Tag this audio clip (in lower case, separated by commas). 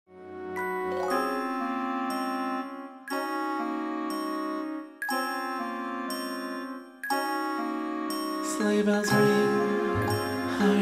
mallet percussion, xylophone, glockenspiel